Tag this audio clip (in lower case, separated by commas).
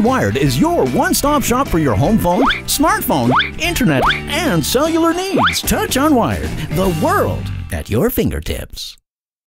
music, speech